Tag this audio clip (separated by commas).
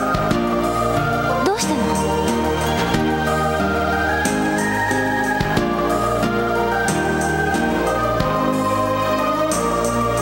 Speech, Music